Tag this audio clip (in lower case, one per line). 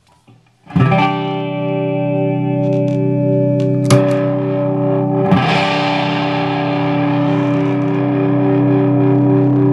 distortion
music
guitar
musical instrument
plucked string instrument
effects unit